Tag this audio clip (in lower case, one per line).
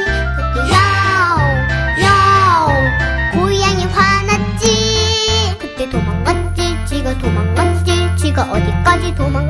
music for children
music